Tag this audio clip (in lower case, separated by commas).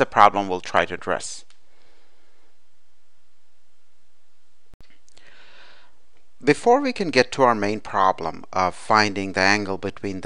speech